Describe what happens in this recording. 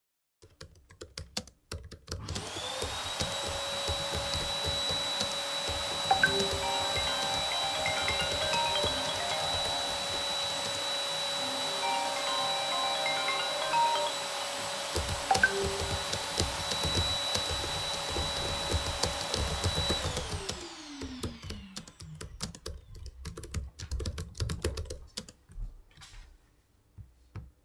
I was working and my flatmate was vaccuming when my other flatmate called.